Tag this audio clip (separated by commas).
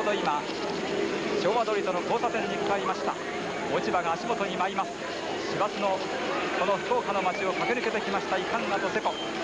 Speech, outside, urban or man-made